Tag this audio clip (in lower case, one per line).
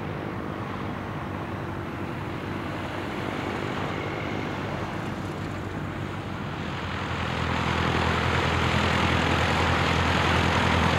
airscrew
aircraft
fixed-wing aircraft
vehicle